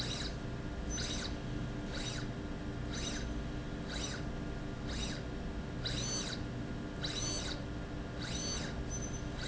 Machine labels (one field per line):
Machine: slide rail